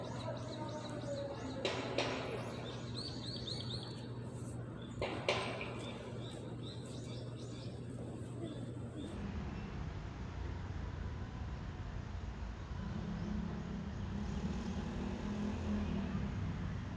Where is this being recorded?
in a residential area